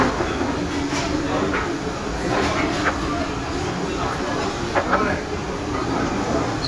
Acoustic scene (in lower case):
restaurant